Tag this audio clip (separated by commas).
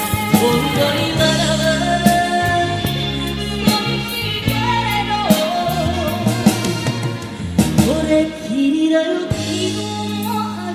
Music, Singing